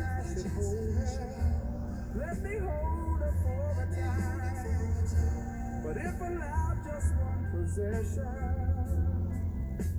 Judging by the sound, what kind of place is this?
car